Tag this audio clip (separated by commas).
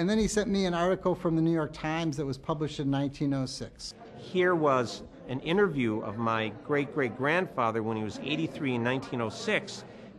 Speech